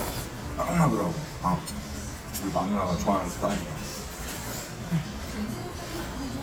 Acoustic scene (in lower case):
restaurant